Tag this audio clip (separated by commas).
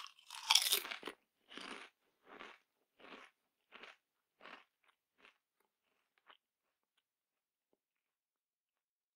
people eating crisps